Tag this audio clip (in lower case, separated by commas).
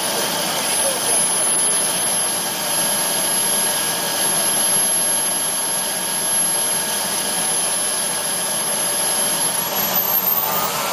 vacuum cleaner